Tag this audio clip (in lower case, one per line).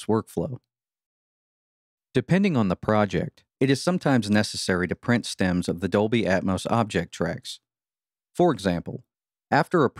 speech